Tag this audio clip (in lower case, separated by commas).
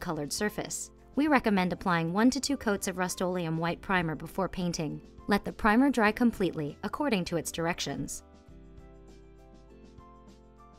speech